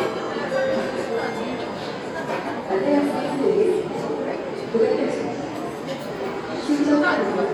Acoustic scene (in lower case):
crowded indoor space